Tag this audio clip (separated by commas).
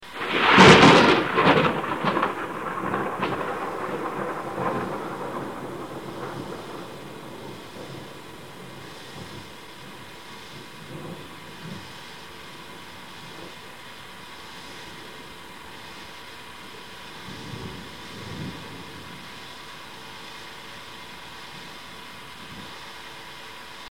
Thunder, Thunderstorm